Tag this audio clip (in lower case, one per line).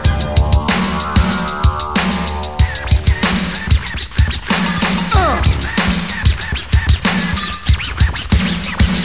sampler
electronic music
music